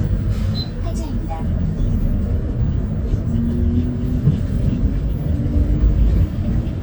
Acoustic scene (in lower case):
bus